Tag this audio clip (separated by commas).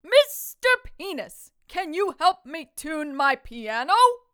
Speech, Yell, Shout, Female speech, Human voice